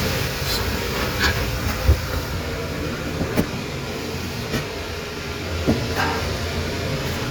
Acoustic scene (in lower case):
kitchen